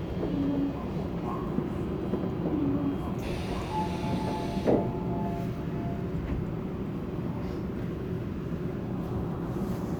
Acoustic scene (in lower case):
subway train